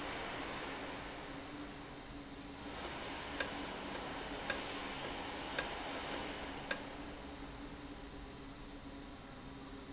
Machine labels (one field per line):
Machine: valve